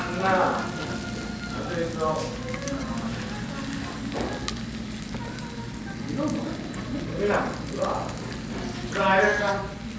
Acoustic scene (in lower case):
restaurant